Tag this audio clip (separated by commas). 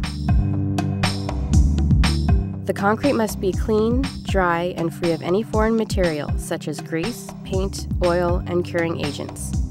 Speech, Music